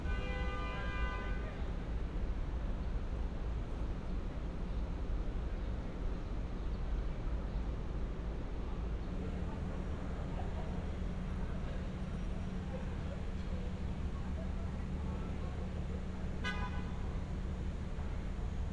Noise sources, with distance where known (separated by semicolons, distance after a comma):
car horn